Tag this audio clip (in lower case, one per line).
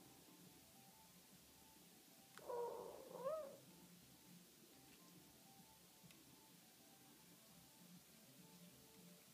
coo
domestic animals
dove
animal
bird